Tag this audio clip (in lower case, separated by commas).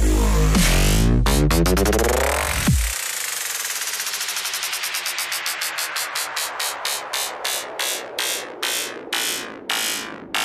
music